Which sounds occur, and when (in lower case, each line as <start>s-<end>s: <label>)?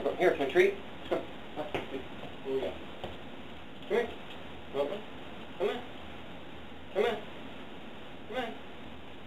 0.0s-0.8s: man speaking
0.0s-9.2s: mechanisms
1.1s-1.2s: human voice
1.5s-1.6s: human voice
1.7s-1.8s: generic impact sounds
1.9s-2.0s: human voice
2.4s-2.7s: man speaking
3.0s-3.0s: generic impact sounds
3.8s-3.9s: generic impact sounds
3.9s-4.0s: human voice
4.2s-4.3s: generic impact sounds
4.7s-4.9s: man speaking
5.6s-5.8s: human voice
6.9s-7.1s: human voice
8.3s-8.6s: human voice